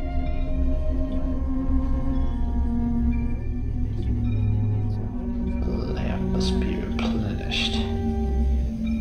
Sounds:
monologue, Music, Speech

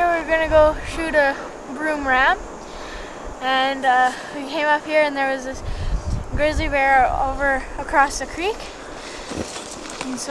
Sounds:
Speech

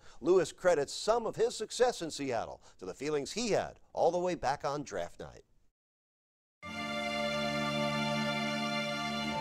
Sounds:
Speech, Music

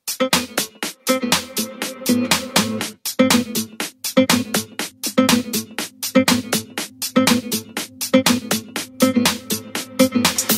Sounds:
Music

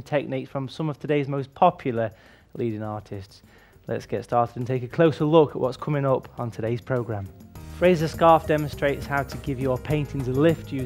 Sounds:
Speech, Music

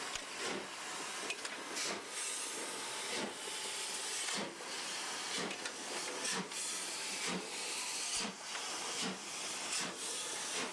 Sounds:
Rail transport, Railroad car, Train, Vehicle

